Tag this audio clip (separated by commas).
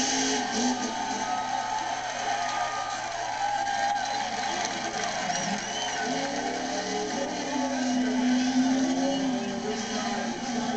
Car, Speech, Vehicle